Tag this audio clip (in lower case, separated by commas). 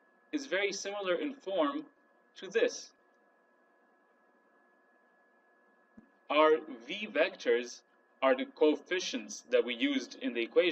speech